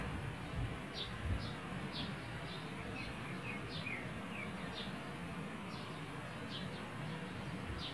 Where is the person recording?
in a park